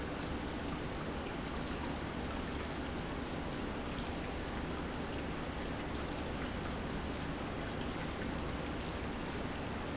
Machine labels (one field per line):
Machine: pump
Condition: normal